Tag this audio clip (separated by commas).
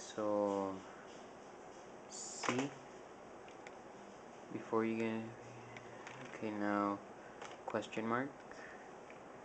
inside a small room, Speech